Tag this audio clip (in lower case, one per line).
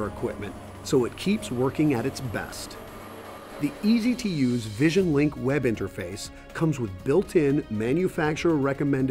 speech
music